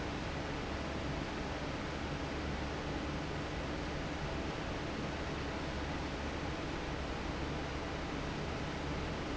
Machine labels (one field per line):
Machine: fan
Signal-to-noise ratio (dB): -6 dB